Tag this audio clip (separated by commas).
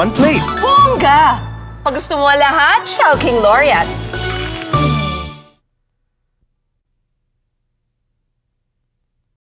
Speech, Music